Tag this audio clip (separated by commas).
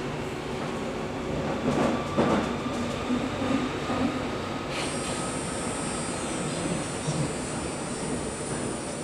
subway